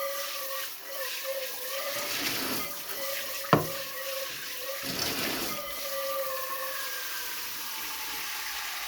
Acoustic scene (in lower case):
kitchen